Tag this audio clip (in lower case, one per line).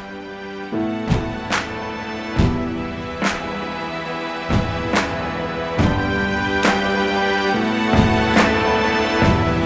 sound effect
music